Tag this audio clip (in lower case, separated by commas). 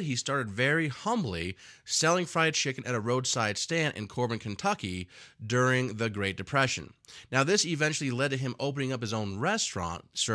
speech